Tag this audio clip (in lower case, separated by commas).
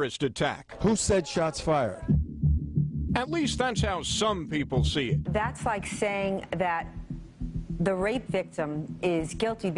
speech, man speaking, music, woman speaking